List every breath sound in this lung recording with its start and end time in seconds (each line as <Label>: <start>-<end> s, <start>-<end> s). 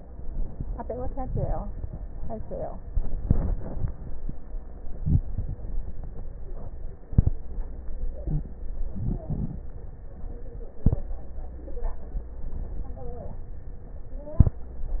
Inhalation: 4.90-5.66 s, 8.66-9.70 s
Wheeze: 8.21-8.49 s
Crackles: 4.90-5.66 s, 8.66-9.70 s